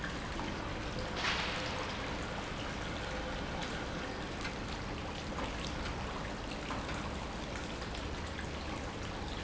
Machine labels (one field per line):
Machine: pump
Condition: normal